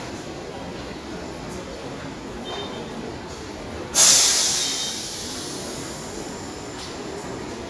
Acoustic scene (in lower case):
subway station